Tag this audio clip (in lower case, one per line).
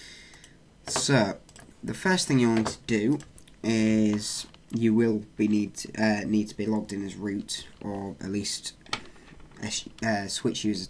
speech